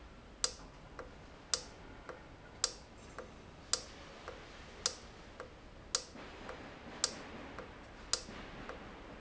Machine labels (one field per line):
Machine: valve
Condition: normal